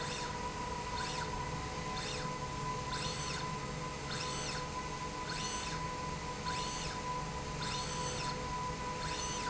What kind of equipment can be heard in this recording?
slide rail